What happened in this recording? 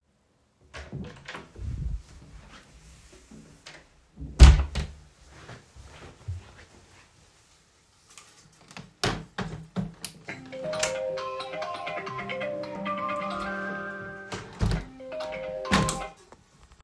I opened and closed the door, walked to the window. While opening the window, my phone started ringing. Then I closed the window.